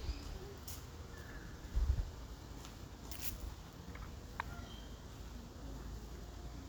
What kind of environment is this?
park